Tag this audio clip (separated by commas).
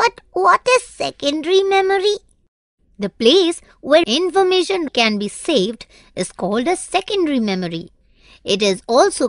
Speech